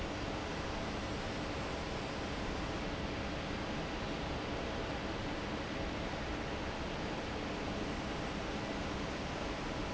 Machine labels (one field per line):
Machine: fan